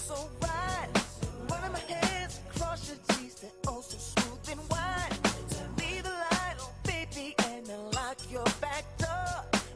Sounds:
music

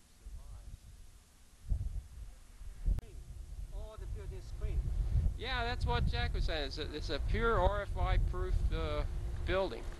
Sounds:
speech

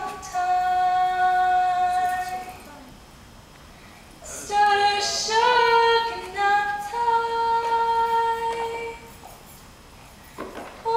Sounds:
music
vocal music

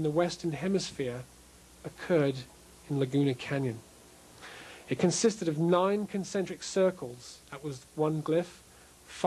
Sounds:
speech

